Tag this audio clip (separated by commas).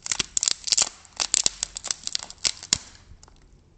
Wood